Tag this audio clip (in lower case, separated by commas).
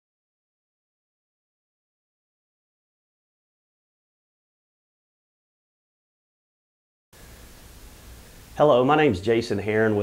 speech